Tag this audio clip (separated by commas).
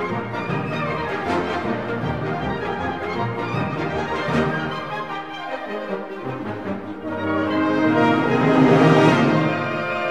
Orchestra, Music